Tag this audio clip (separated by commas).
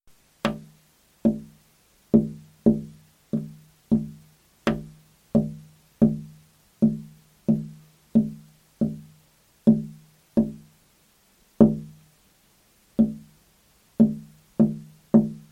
Tap